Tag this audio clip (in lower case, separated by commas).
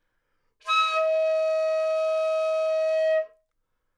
music, wind instrument, musical instrument